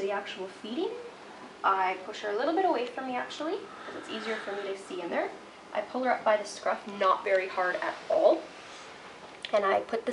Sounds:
speech

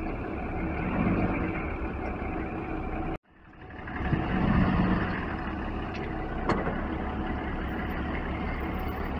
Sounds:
vehicle
outside, urban or man-made

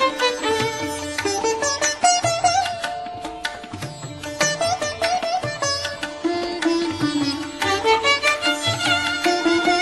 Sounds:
playing sitar

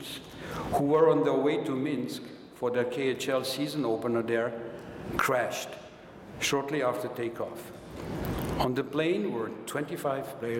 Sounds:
male speech
speech
narration

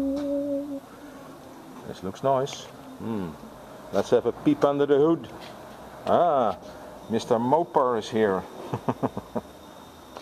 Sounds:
speech

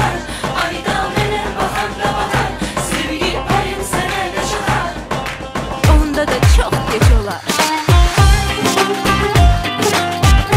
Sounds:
dance music
music

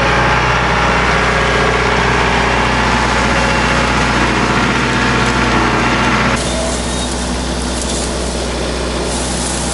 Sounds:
tractor digging

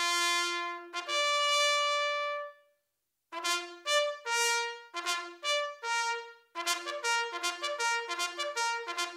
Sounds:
playing bugle

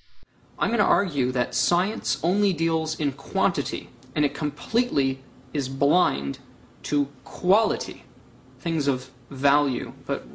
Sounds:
man speaking
speech
monologue

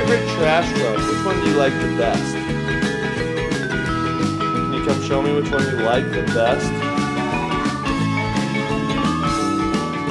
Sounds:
speech

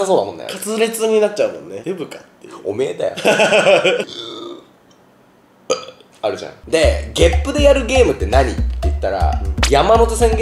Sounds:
people burping

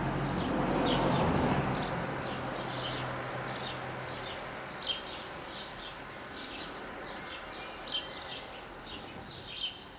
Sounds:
barn swallow calling

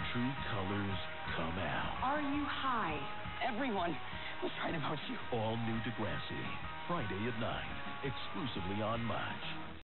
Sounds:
speech
music

